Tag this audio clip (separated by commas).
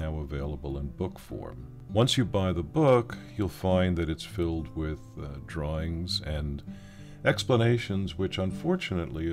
Music, Speech